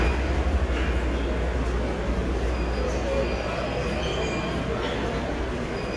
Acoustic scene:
subway station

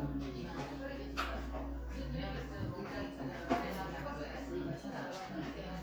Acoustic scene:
crowded indoor space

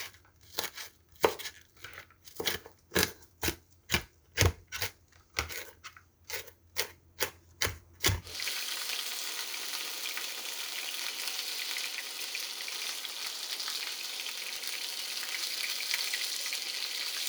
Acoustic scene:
kitchen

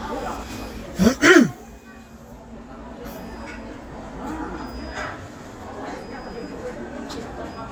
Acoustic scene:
crowded indoor space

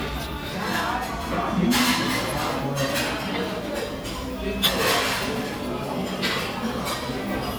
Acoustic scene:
crowded indoor space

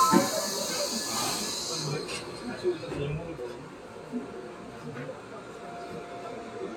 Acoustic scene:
subway train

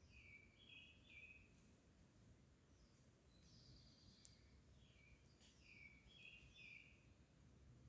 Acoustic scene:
park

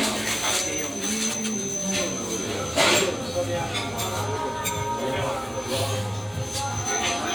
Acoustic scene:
restaurant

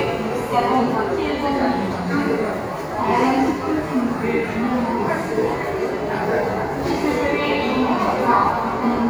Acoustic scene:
subway station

